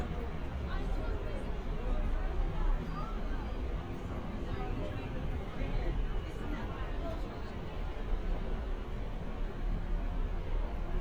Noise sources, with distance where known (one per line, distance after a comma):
person or small group talking